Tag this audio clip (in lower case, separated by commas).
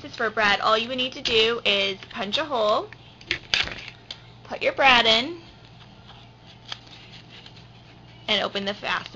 speech